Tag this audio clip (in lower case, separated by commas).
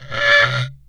wood